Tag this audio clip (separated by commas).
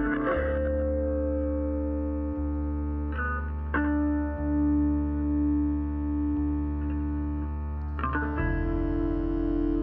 Music, Musical instrument